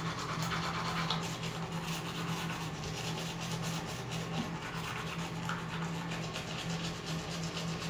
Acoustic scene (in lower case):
restroom